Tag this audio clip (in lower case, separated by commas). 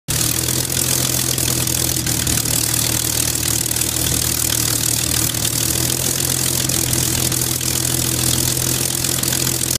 engine, vehicle, idling